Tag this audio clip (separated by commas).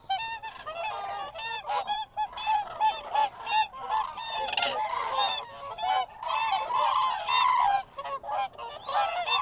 Goose, Honk, Fowl